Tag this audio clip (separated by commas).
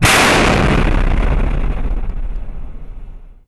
Explosion